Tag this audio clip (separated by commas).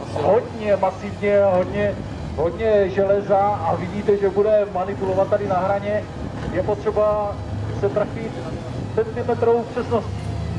Vehicle, Speech, Truck